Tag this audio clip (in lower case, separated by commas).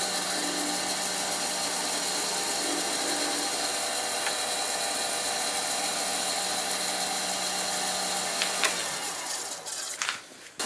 tools